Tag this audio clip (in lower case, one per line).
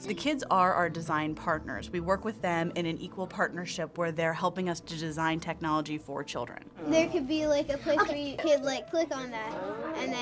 speech